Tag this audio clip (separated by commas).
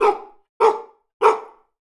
Domestic animals, Animal, Bark, Dog